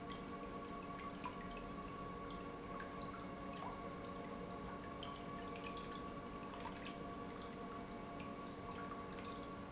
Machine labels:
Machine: pump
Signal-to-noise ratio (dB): 6 dB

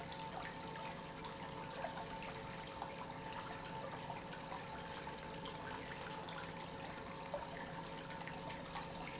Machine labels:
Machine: pump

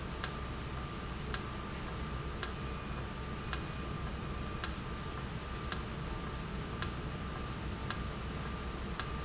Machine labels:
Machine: valve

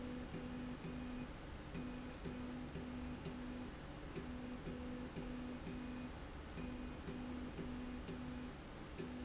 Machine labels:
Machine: slide rail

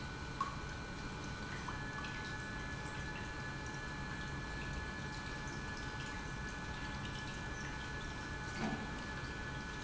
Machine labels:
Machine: pump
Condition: normal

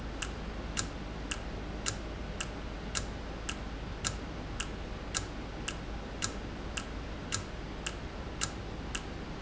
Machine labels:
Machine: valve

